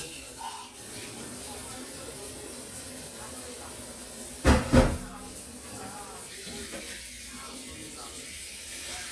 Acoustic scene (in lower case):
kitchen